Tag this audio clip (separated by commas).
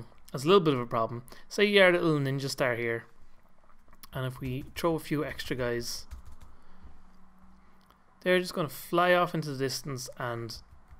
Speech